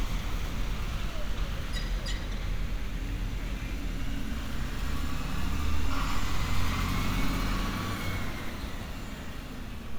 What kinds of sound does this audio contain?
large-sounding engine